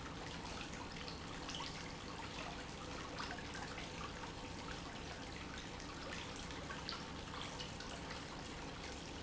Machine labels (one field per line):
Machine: pump